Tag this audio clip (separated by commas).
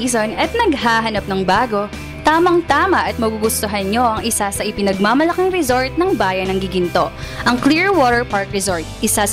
Speech, Music